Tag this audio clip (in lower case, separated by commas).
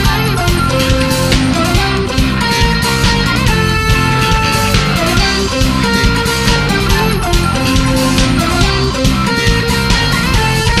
music